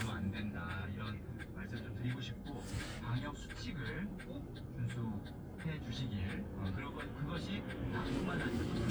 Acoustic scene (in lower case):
car